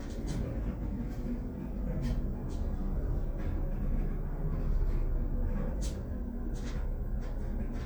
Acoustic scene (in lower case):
elevator